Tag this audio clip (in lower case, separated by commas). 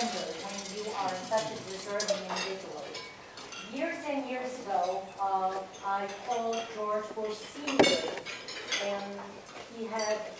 speech, dishes, pots and pans